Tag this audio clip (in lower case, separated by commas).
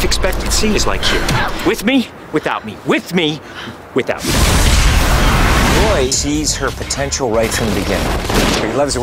fusillade, speech, music